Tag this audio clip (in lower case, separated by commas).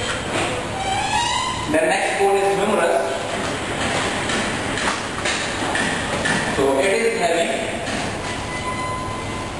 underground